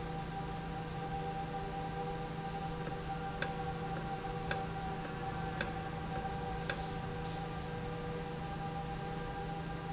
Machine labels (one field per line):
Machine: valve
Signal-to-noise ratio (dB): -6 dB